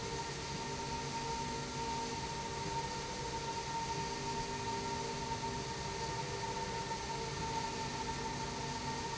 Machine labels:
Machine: slide rail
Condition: normal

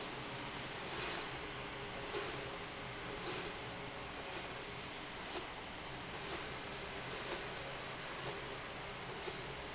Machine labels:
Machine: slide rail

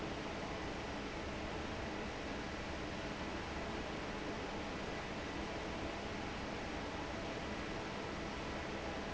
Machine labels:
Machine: fan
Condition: normal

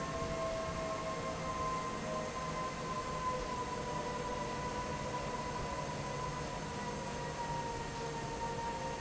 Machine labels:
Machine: fan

